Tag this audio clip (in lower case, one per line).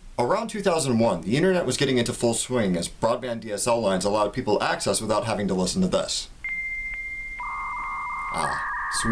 speech
music